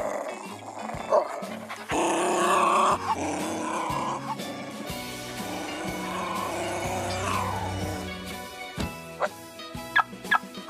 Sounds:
Yip, Animal, Music, pets, Dog, Whimper (dog), Bow-wow

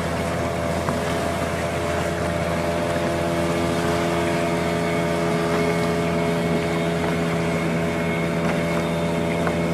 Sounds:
Vehicle, speedboat, Boat

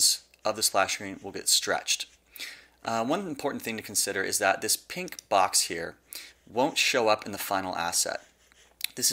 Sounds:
Speech

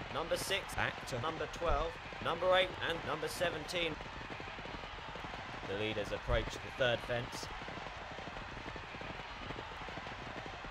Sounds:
Clip-clop, Speech

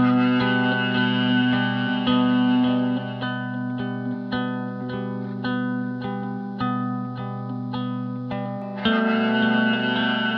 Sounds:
Music

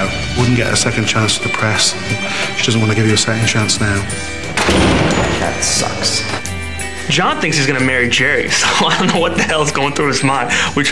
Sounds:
Music, Speech

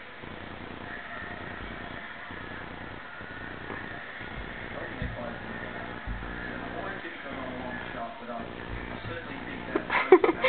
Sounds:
Speech, inside a small room

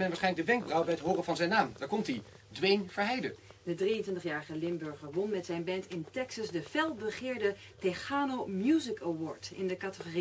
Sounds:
Speech

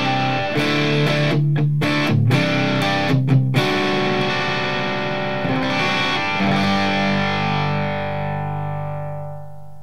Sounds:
Guitar, Music, Electric guitar, Musical instrument

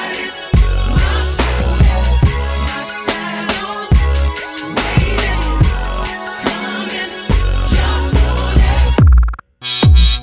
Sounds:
Music

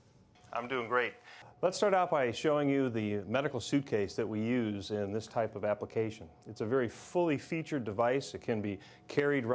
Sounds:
Speech

